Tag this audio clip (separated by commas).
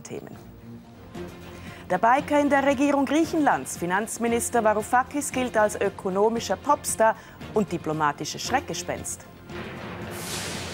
Music, Speech